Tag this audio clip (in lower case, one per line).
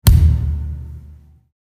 thump